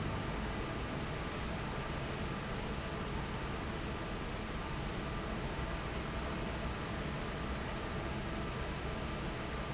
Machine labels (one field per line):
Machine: fan